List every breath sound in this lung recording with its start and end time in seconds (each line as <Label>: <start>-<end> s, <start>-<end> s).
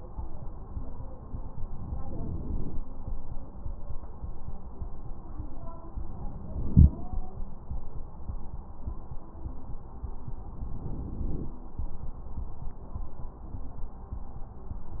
Inhalation: 1.65-2.83 s, 6.01-7.19 s, 10.52-11.57 s